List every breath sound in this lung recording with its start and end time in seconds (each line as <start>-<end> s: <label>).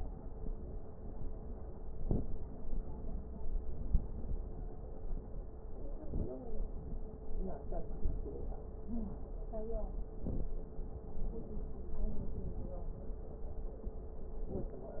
1.78-2.61 s: inhalation
1.78-2.61 s: crackles
6.03-6.68 s: stridor
10.17-10.82 s: inhalation
10.17-10.82 s: crackles
14.41-15.00 s: inhalation
14.41-15.00 s: crackles